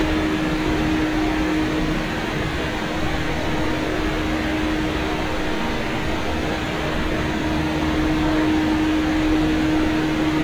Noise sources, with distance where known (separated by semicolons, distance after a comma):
large-sounding engine, near